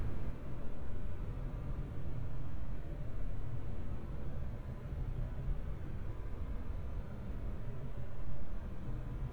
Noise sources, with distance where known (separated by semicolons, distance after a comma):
background noise